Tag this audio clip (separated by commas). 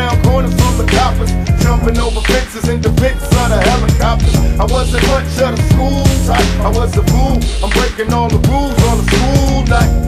Music